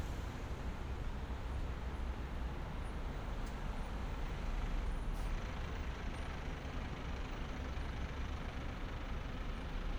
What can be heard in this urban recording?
large-sounding engine